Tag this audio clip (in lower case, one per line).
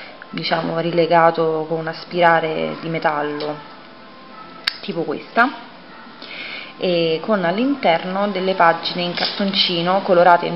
speech
music